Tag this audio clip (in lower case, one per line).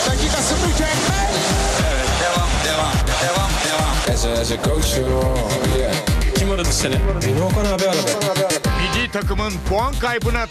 music
speech